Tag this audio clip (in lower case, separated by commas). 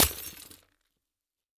crushing, glass, shatter